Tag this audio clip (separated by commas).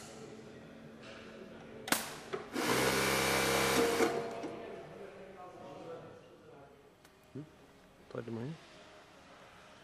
Speech